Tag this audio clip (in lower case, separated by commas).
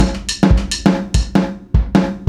music, drum kit, percussion, musical instrument